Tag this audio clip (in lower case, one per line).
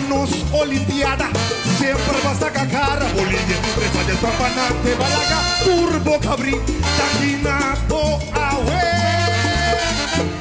music